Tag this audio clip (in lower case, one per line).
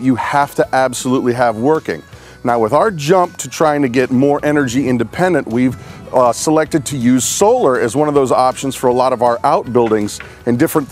speech
music